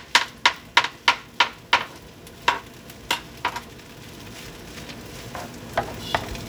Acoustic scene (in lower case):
kitchen